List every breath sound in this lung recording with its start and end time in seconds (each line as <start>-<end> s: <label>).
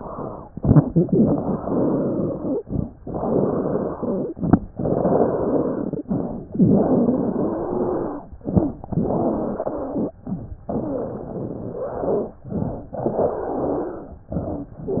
0.49-0.90 s: inhalation
0.49-0.90 s: wheeze
1.16-2.59 s: exhalation
1.16-2.59 s: wheeze
2.62-2.91 s: inhalation
2.98-4.33 s: exhalation
2.98-4.33 s: wheeze
4.38-4.68 s: inhalation
4.71-6.05 s: exhalation
4.71-6.05 s: wheeze
6.10-6.49 s: inhalation
6.56-8.24 s: exhalation
6.56-8.24 s: wheeze
8.44-8.82 s: inhalation
8.86-10.11 s: exhalation
8.86-10.11 s: wheeze
10.26-10.64 s: inhalation
10.72-12.37 s: exhalation
10.72-12.37 s: wheeze
12.49-12.92 s: inhalation
13.03-14.23 s: exhalation
13.03-14.23 s: wheeze
14.32-14.75 s: inhalation